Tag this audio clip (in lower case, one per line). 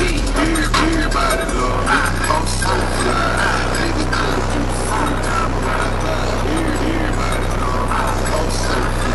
music
vehicle
motor vehicle (road)